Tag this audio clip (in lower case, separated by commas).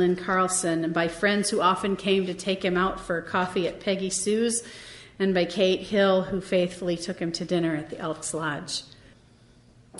speech